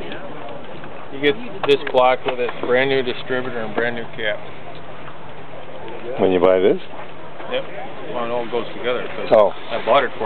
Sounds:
outside, urban or man-made
speech

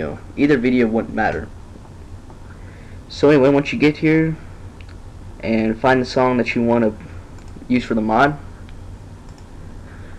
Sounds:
speech

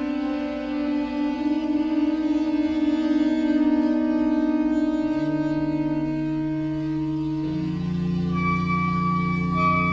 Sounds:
music

